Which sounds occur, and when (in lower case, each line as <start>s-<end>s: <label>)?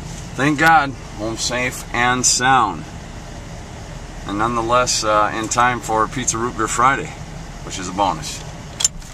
0.0s-8.8s: vehicle
7.6s-8.5s: man speaking